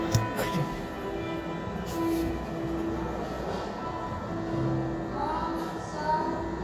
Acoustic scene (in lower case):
cafe